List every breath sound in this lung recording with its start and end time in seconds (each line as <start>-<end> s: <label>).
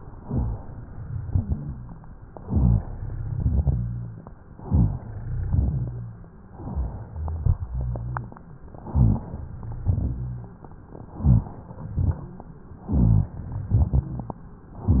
0.11-0.76 s: inhalation
0.11-0.76 s: rhonchi
1.27-2.17 s: exhalation
1.27-2.17 s: rhonchi
2.37-3.27 s: inhalation
2.37-3.27 s: rhonchi
3.32-4.21 s: exhalation
3.32-4.21 s: rhonchi
4.65-5.54 s: inhalation
4.65-5.54 s: rhonchi
5.56-6.45 s: exhalation
5.56-6.45 s: rhonchi
6.62-7.40 s: inhalation
6.62-7.40 s: rhonchi
7.46-8.35 s: exhalation
7.46-8.35 s: rhonchi
8.92-9.81 s: inhalation
8.92-9.81 s: rhonchi
9.83-10.72 s: exhalation
9.83-10.72 s: rhonchi
11.06-11.84 s: inhalation
11.19-11.56 s: rhonchi
11.91-12.68 s: exhalation
11.91-12.68 s: rhonchi
12.84-13.36 s: rhonchi
12.84-13.70 s: inhalation
13.74-14.48 s: exhalation
13.74-14.48 s: rhonchi